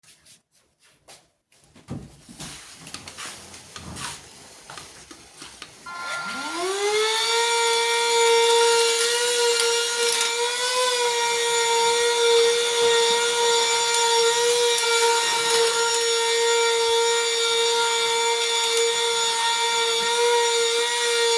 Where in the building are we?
living room